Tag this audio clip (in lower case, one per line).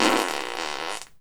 fart